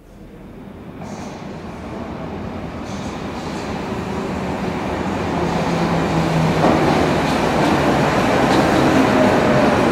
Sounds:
underground

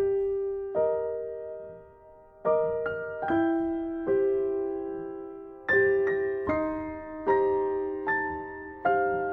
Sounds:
music

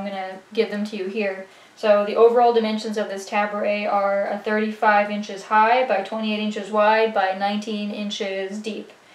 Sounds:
speech

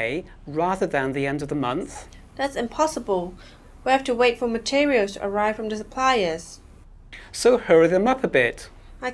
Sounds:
speech

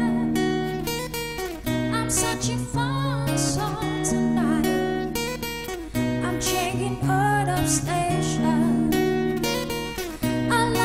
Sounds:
plucked string instrument
guitar
strum
acoustic guitar
musical instrument
playing acoustic guitar
music

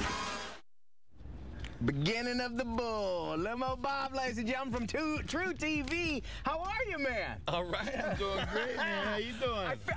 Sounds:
speech

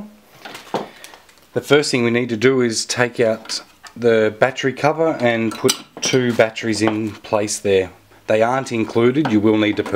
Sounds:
speech

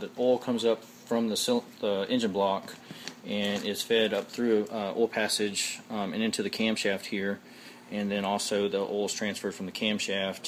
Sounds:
speech

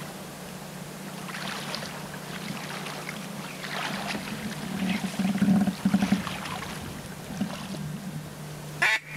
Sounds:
bird

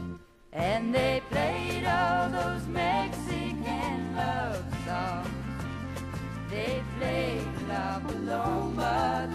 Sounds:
music
country

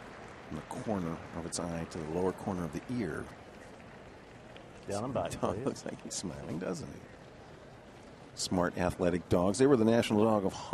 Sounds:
speech

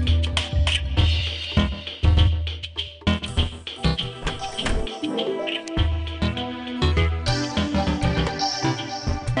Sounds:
music

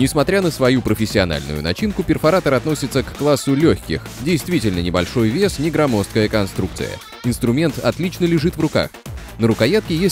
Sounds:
speech
music

